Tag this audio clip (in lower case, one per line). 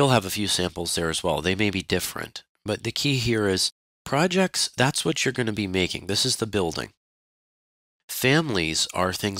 speech synthesizer